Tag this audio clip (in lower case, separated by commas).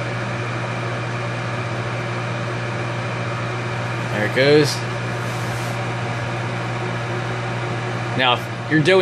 speech